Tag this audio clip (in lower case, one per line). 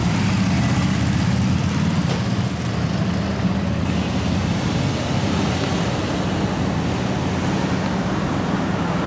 car passing by